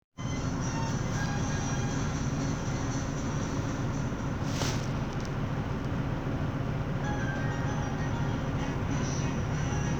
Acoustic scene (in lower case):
bus